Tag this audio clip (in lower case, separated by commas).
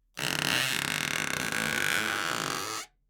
squeak